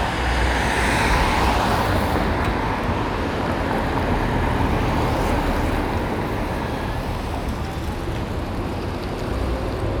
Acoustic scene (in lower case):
street